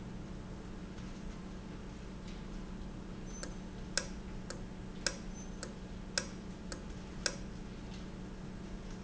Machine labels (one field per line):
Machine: valve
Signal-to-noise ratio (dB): 0 dB